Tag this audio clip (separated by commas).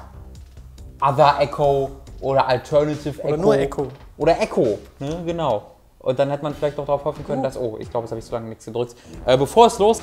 Speech, Music